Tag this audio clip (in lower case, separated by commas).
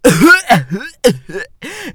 respiratory sounds, cough